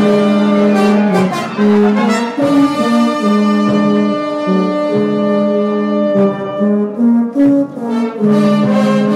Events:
0.0s-9.1s: music

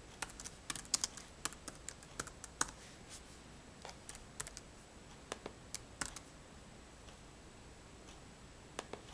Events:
0.0s-9.1s: mechanisms
0.1s-0.5s: computer keyboard
0.6s-1.2s: computer keyboard
1.4s-1.7s: computer keyboard
1.8s-2.0s: computer keyboard
2.1s-2.4s: computer keyboard
2.6s-2.7s: computer keyboard
2.8s-3.2s: surface contact
3.8s-4.2s: generic impact sounds
4.3s-4.6s: computer keyboard
5.0s-5.2s: surface contact
5.3s-5.5s: clicking
5.7s-5.8s: clicking
6.0s-6.1s: clicking
7.0s-7.1s: generic impact sounds
8.0s-8.2s: generic impact sounds
8.8s-9.0s: clicking

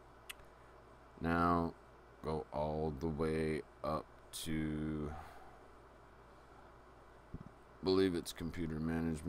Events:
0.0s-9.2s: mechanisms
0.2s-0.4s: human sounds
1.2s-1.7s: male speech
2.2s-3.6s: male speech
3.8s-4.0s: male speech
4.3s-5.2s: male speech
7.3s-7.5s: human sounds
7.8s-9.2s: male speech

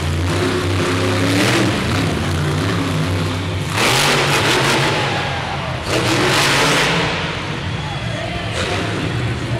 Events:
0.0s-9.5s: truck
1.2s-1.7s: accelerating
3.7s-5.5s: accelerating
4.7s-5.8s: cheering
5.8s-7.3s: accelerating
7.6s-9.5s: cheering

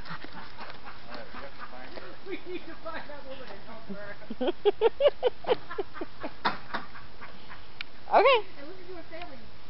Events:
0.0s-2.2s: pant (dog)
0.0s-9.6s: wind
0.0s-7.6s: laughter
1.0s-2.1s: male speech
1.0s-9.6s: conversation
2.3s-4.3s: male speech
3.4s-3.6s: generic impact sounds
6.4s-6.9s: generic impact sounds
7.8s-7.9s: tick
8.1s-9.5s: woman speaking
9.2s-9.3s: tick

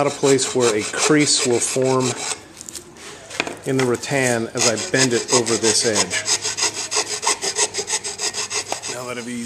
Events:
0.0s-2.1s: male speech
0.0s-2.3s: filing (rasp)
0.0s-9.4s: mechanisms
2.3s-3.6s: human voice
2.5s-2.8s: generic impact sounds
2.9s-3.2s: surface contact
3.3s-4.0s: generic impact sounds
3.6s-6.1s: male speech
4.0s-4.4s: scrape
4.5s-8.9s: filing (rasp)
6.7s-7.0s: human voice
8.7s-8.8s: generic impact sounds
8.8s-9.4s: male speech
8.9s-9.4s: surface contact

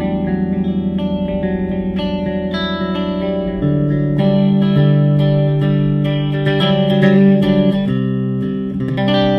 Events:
0.0s-9.3s: effects unit
0.0s-9.3s: music

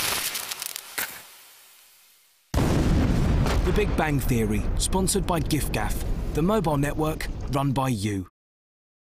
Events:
0.0s-2.5s: fire
2.5s-7.5s: explosion
3.6s-4.6s: male speech
4.7s-6.0s: male speech
5.2s-5.5s: generic impact sounds
6.3s-7.3s: male speech
7.4s-7.5s: clicking
7.5s-8.3s: male speech

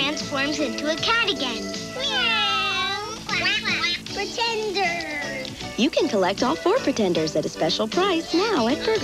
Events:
0.0s-1.5s: child speech
0.0s-9.0s: music
1.9s-3.1s: child speech
3.3s-4.0s: child speech
4.1s-5.5s: child speech
4.6s-4.7s: tick
5.0s-5.1s: tick
5.4s-5.5s: tick
5.7s-6.5s: woman speaking
6.7s-8.2s: woman speaking
8.2s-9.0s: child speech
8.3s-9.0s: woman speaking
8.6s-9.0s: generic impact sounds

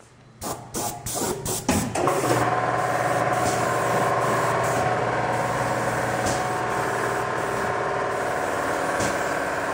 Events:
0.0s-9.7s: mechanisms

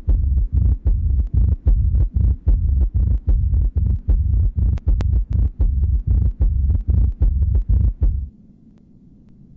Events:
0.0s-9.5s: rumble
0.1s-0.7s: heartbeat
0.8s-1.5s: heartbeat
1.6s-2.3s: heartbeat
2.5s-3.1s: heartbeat
3.3s-3.9s: heartbeat
4.1s-4.7s: heartbeat
4.7s-4.8s: tick
4.8s-5.5s: heartbeat
4.9s-5.0s: tick
5.6s-6.3s: heartbeat
6.4s-7.1s: heartbeat
7.2s-7.9s: heartbeat
8.0s-8.3s: heartbeat
8.7s-8.8s: clicking
9.2s-9.3s: clicking

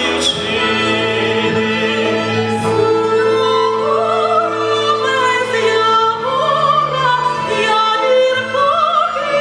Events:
0.0s-9.4s: music
3.1s-9.4s: choir

